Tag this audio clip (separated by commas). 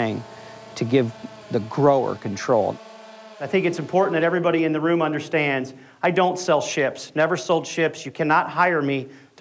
Speech, Buzz